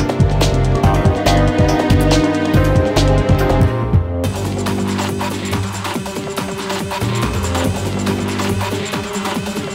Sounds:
Music

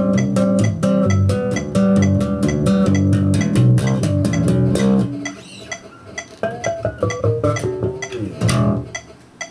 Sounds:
Music, Soundtrack music

